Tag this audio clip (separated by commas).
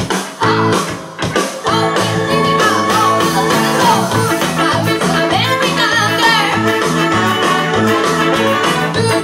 Singing, Ska, Music